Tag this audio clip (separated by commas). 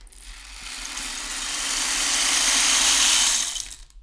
Rattle (instrument), Musical instrument, Percussion, Music